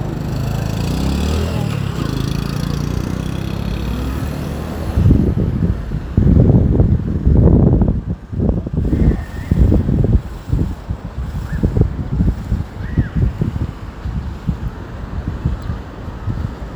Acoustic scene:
street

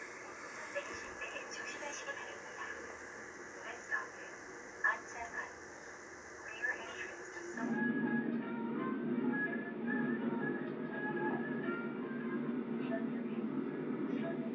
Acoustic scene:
subway train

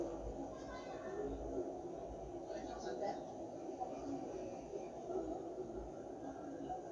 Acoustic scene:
park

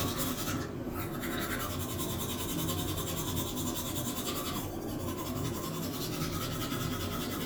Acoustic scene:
restroom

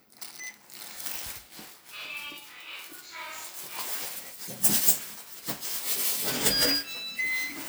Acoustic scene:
elevator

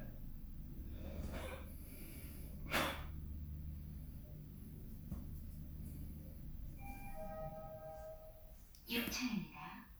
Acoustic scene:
elevator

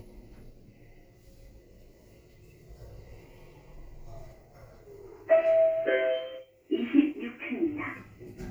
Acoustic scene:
elevator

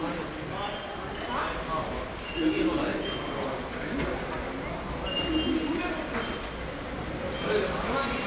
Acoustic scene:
subway station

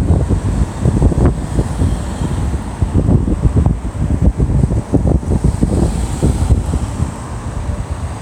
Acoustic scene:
street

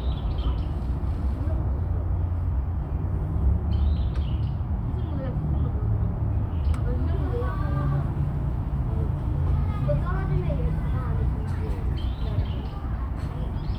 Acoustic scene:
park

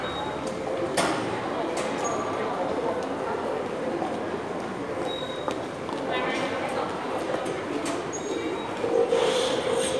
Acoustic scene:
subway station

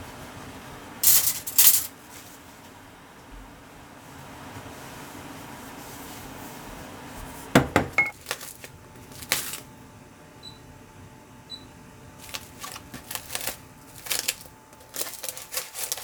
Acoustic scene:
kitchen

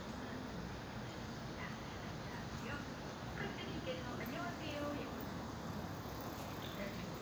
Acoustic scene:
park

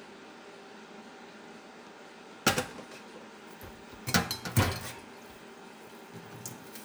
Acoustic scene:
kitchen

